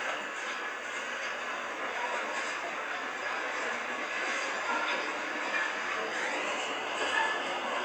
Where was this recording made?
on a subway train